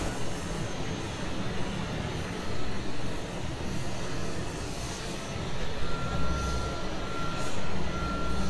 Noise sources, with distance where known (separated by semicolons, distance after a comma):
unidentified impact machinery, far